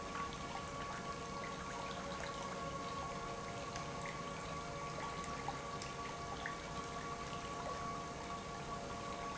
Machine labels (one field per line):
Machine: pump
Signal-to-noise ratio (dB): 0 dB